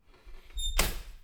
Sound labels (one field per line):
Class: window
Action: closing